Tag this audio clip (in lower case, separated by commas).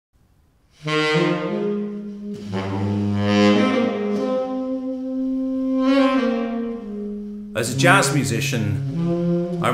playing saxophone